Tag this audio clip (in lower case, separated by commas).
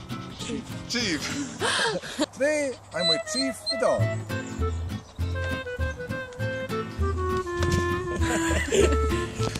speech, music